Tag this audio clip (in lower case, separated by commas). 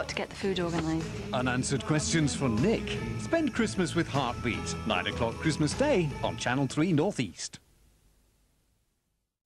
music, speech